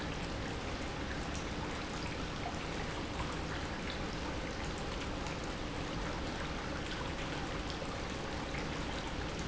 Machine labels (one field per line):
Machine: pump